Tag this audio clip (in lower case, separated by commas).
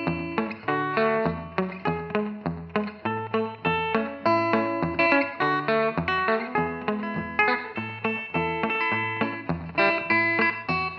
guitar, music, electric guitar, bass guitar, musical instrument, strum, plucked string instrument